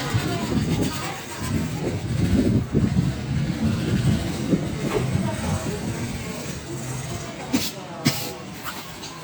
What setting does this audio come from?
park